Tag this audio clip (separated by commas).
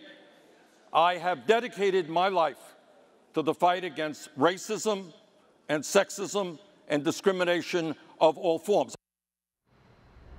people booing